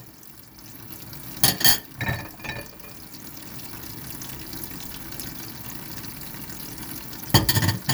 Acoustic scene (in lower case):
kitchen